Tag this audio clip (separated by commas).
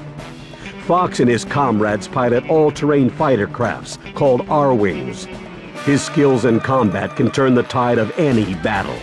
Speech, Music